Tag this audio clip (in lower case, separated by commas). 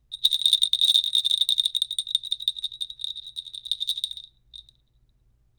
bell